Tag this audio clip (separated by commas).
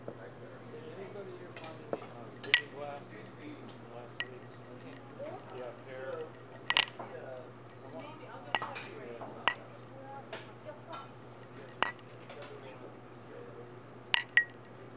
clink, Glass